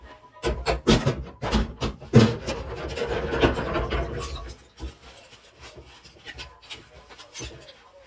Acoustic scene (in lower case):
kitchen